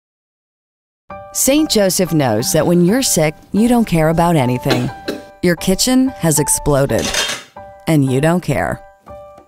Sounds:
Cough, Music, Speech

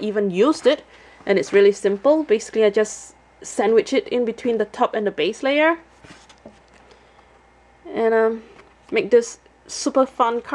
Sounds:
Speech

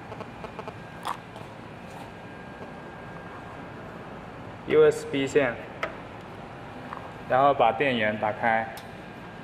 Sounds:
Speech

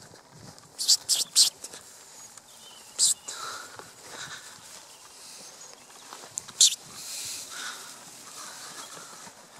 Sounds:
Animal

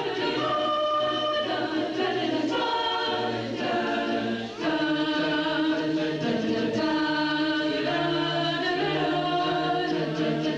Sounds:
A capella, Choir, Music, Singing, Chant, Vocal music

